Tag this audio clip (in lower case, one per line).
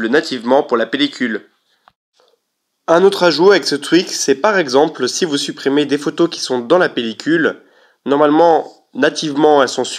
speech